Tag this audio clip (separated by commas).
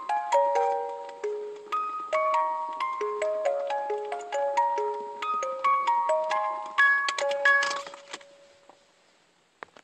Happy music, Music